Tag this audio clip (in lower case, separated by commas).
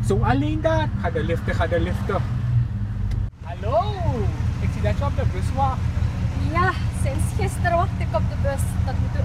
vehicle, car, speech